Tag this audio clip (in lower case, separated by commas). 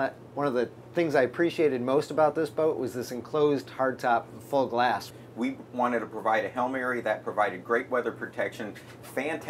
speech